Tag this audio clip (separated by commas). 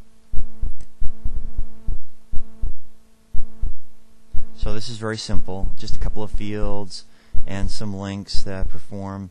Speech